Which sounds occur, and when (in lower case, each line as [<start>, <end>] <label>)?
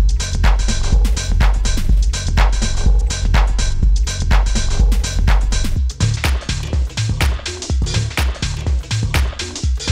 [0.00, 9.91] music